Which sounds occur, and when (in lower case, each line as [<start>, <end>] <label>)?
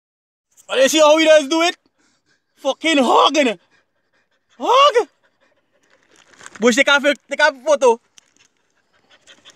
[0.38, 0.58] generic impact sounds
[0.61, 1.66] man speaking
[1.79, 2.75] breathing
[2.49, 3.52] man speaking
[3.49, 5.94] pant
[4.54, 5.01] man speaking
[5.77, 6.56] crumpling
[6.58, 7.95] man speaking
[7.93, 9.55] pant
[8.11, 8.42] tick